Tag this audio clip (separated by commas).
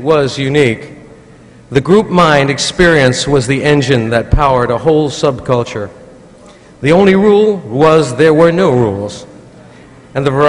Speech